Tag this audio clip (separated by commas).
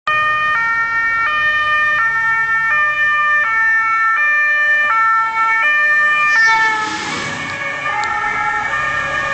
Siren, Vehicle, ambulance siren, Ambulance (siren)